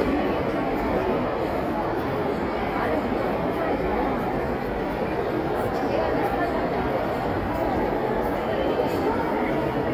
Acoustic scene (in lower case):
crowded indoor space